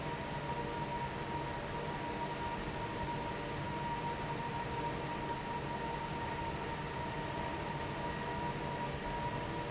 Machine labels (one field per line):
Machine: fan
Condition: normal